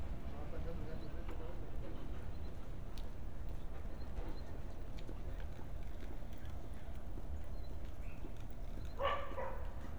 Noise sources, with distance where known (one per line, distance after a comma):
unidentified human voice
dog barking or whining, near